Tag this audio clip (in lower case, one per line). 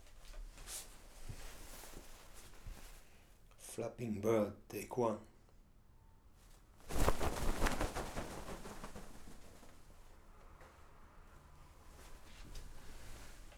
animal
bird
wild animals